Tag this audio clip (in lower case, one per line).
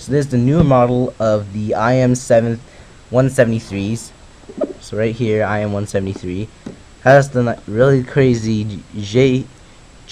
speech